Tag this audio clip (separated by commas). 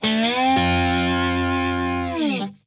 Music, Guitar, Musical instrument, Plucked string instrument